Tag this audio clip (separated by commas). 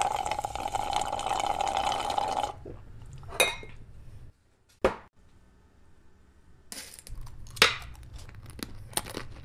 Crunch